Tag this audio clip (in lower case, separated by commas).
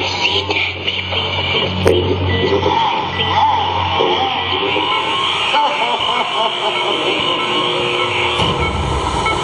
speech, music, pulse